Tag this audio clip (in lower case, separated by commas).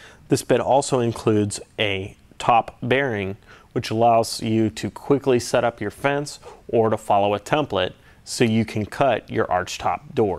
speech